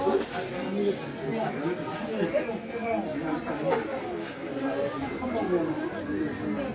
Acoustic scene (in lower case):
park